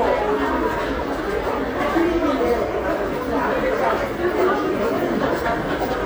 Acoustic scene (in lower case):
subway station